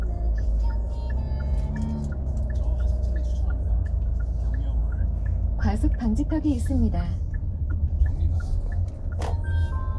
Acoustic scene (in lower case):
car